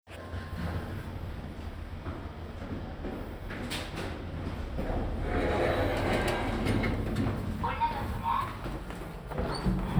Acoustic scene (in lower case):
elevator